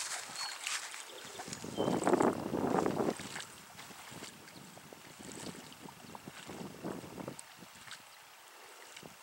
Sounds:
Water vehicle, canoe, Vehicle, kayak

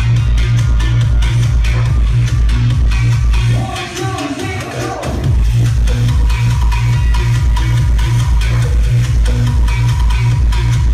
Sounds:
Pop music, Exciting music, Music

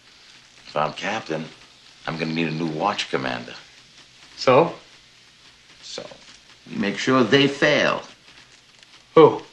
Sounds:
Speech

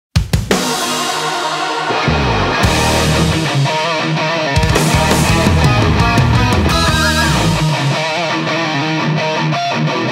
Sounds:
Progressive rock, Music

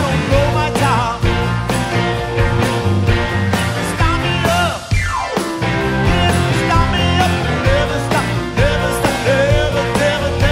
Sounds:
Music

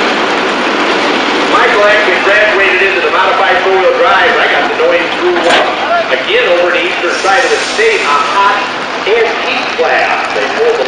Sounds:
Speech, Vehicle

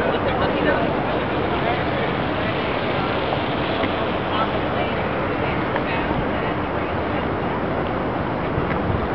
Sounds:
Speech

